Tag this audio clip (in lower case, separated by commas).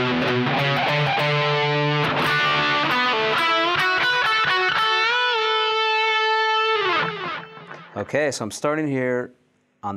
plucked string instrument, speech, electric guitar, musical instrument, music, guitar